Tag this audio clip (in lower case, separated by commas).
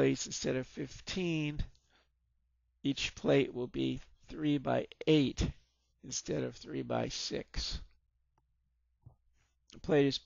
speech